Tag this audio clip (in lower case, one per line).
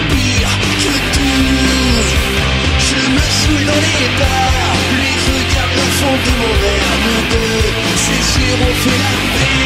music